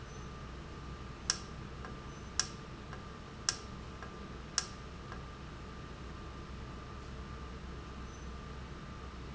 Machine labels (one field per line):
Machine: valve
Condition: normal